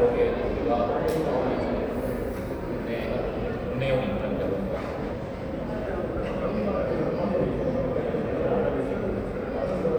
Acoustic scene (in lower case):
crowded indoor space